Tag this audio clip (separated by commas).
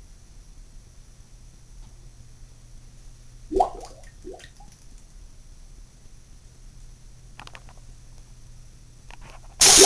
Toilet flush